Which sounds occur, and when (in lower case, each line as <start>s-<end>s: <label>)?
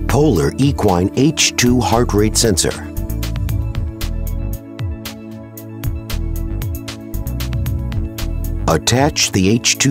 0.0s-2.9s: man speaking
0.0s-9.9s: music
8.6s-9.9s: man speaking